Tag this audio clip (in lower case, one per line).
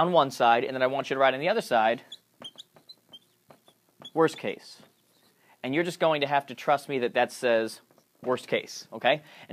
inside a small room
speech